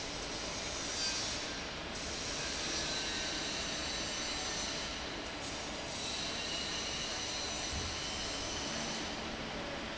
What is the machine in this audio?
fan